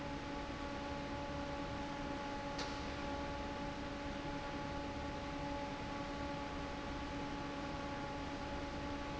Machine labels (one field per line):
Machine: fan